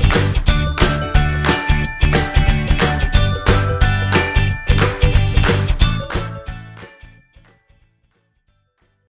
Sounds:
Music

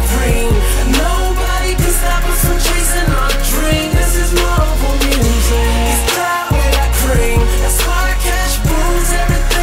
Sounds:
Music, Pop music, Dance music

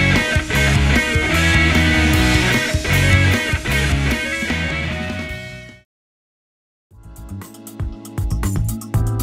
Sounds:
Music

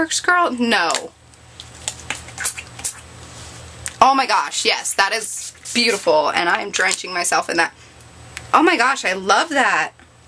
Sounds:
Speech, inside a small room

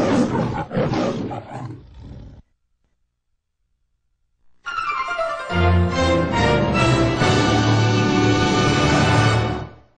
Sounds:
Music

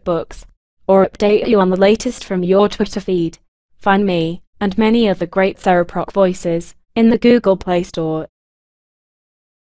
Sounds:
Speech

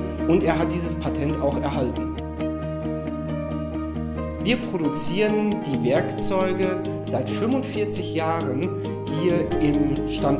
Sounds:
Speech, Music

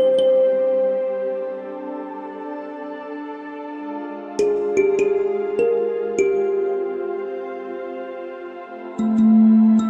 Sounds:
Music

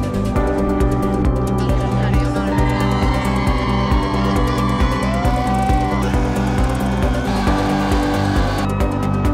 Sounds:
Music

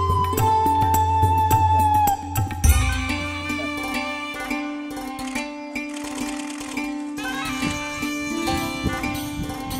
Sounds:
Music

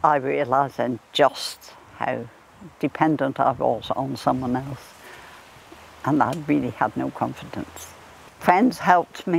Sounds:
Speech

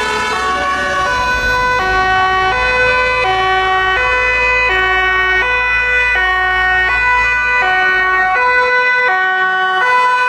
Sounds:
fire truck siren

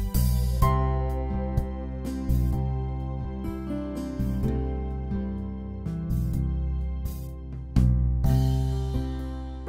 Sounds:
Music

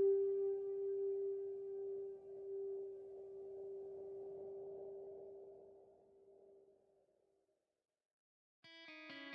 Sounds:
Music

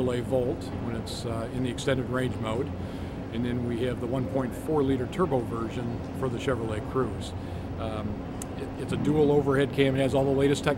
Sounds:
Heavy engine (low frequency), Speech

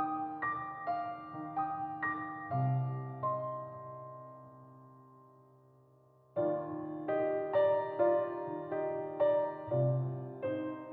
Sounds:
Music

